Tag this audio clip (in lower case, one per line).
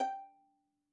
musical instrument
bowed string instrument
music